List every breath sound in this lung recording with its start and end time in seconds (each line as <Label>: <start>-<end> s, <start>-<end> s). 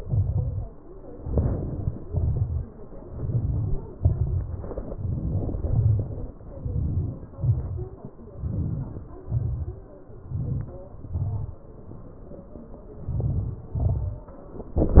Inhalation: 0.95-1.80 s, 2.90-3.78 s, 4.57-5.66 s, 6.45-7.25 s, 8.20-8.96 s, 10.21-10.85 s, 12.94-13.66 s
Exhalation: 1.80-2.35 s, 3.78-4.40 s, 5.67-6.22 s, 7.30-7.86 s, 9.01-9.58 s, 10.81-11.33 s, 13.64-14.21 s